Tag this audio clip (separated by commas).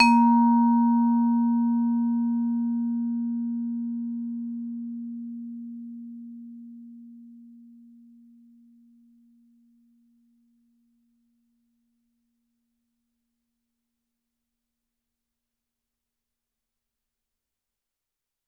Music, Musical instrument, Percussion, Mallet percussion